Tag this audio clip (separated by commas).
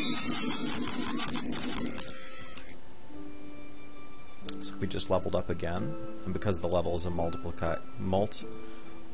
Speech, Music